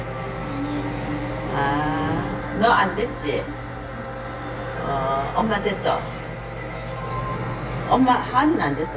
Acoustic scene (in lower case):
crowded indoor space